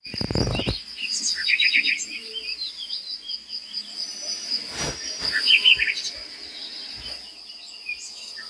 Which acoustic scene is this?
park